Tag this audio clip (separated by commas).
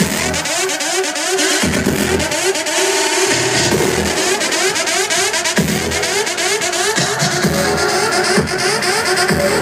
Music